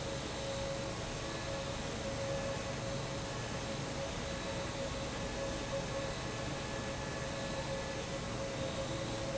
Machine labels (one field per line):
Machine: fan